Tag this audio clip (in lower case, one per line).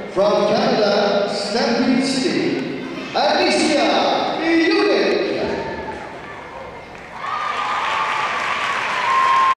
speech